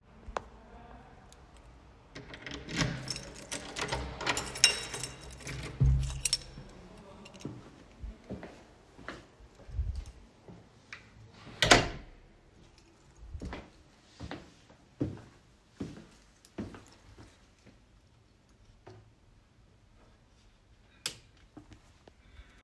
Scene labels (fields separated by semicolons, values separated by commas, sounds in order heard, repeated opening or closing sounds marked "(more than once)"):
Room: hallway; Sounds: door (more than once), keys, footsteps, light switch